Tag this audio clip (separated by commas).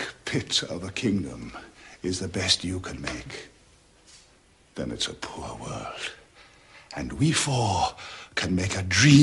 monologue, Male speech, Speech